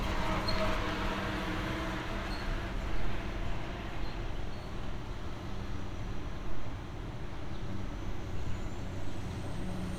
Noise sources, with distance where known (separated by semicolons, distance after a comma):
engine of unclear size